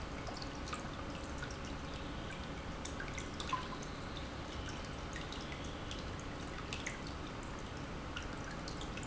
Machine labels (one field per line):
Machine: pump